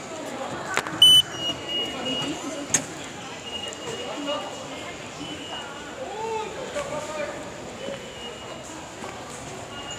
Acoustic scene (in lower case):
subway station